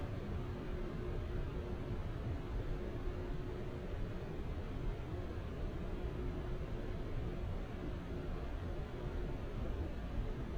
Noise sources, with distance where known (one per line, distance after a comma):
engine of unclear size